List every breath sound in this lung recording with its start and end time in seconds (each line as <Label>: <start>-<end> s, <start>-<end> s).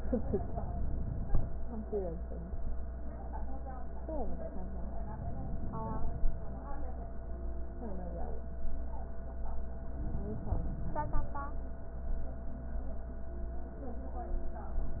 Inhalation: 5.06-6.38 s, 9.97-11.29 s